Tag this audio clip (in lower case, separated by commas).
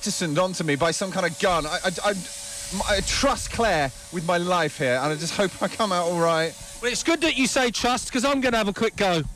speech, spray